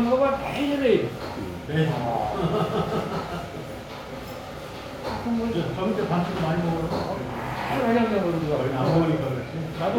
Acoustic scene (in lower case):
restaurant